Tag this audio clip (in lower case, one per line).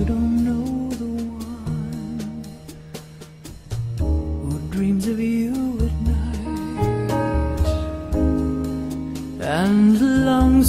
music
soul music